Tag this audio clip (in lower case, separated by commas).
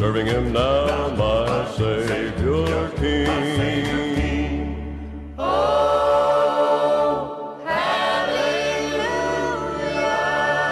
choir, male singing, female singing, music